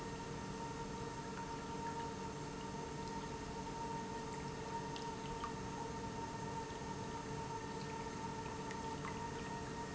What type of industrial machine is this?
pump